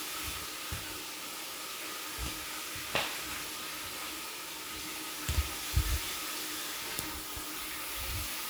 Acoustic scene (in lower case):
restroom